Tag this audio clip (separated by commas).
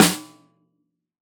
Musical instrument, Snare drum, Drum, Music, Percussion